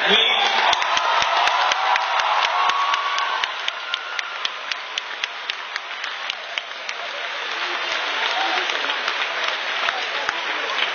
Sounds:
man speaking
speech
woman speaking

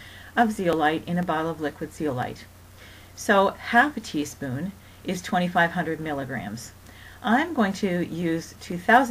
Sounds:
speech

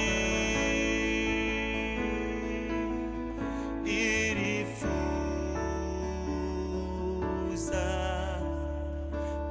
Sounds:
music
sad music

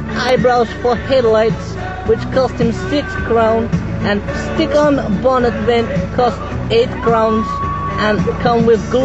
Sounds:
speech
music

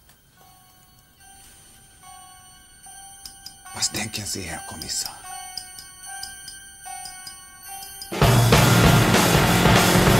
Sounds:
music
speech

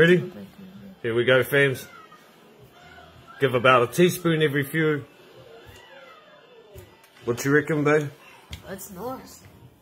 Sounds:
people coughing

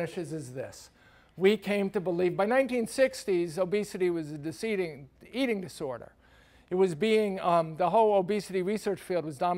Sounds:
speech

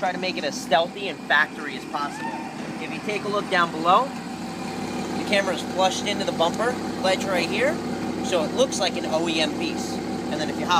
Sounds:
speech

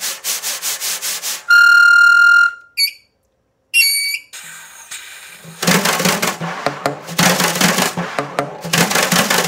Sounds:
musical instrument
music

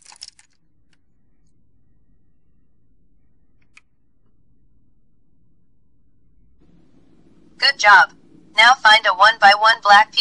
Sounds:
speech

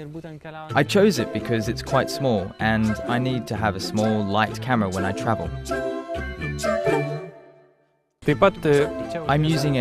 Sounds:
speech
music

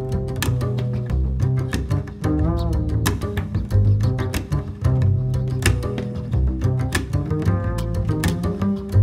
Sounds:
music

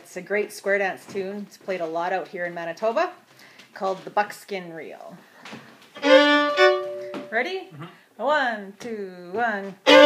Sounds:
speech
musical instrument
fiddle
music

